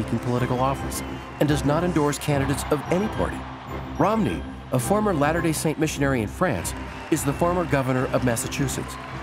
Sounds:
Music, Speech

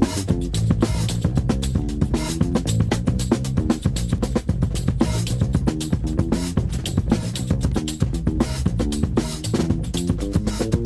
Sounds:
Music

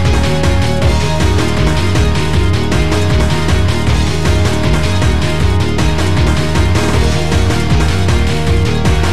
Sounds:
Music, Exciting music

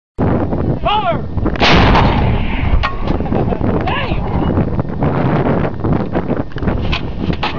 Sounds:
Gunshot, Artillery fire

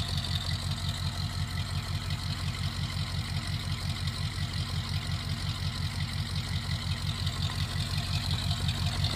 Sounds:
Vehicle, Truck

